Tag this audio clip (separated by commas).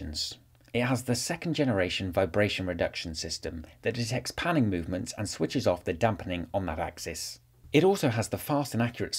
Speech